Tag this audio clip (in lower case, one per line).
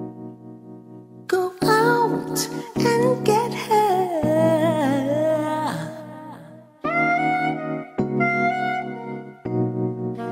music